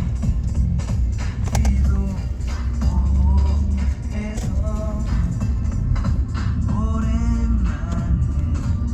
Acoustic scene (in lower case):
car